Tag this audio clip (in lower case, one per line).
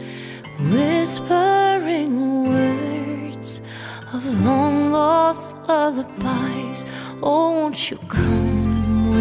music
lullaby